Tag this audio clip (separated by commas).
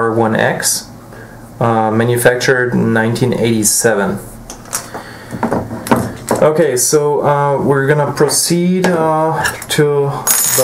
Speech